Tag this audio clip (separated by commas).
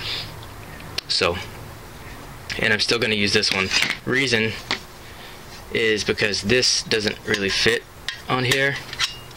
silverware